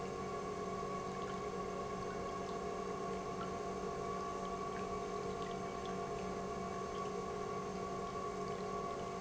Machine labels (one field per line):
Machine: pump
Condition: normal